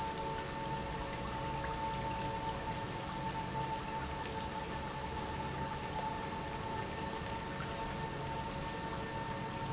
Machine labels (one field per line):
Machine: pump